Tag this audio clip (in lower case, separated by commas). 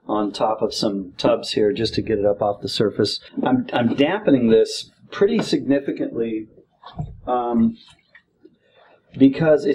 speech